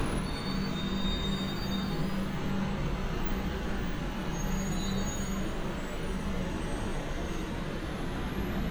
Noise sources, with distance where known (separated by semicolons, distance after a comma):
large-sounding engine